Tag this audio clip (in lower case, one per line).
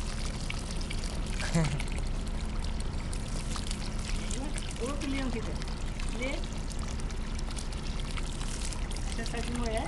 speech